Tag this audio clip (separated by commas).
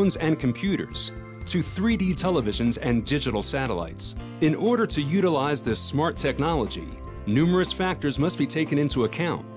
Speech, Music